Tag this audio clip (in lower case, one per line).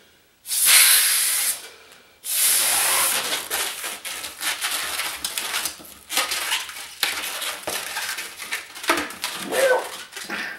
inside a large room or hall